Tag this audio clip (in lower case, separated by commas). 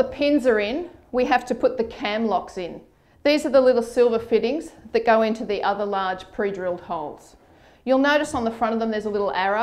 speech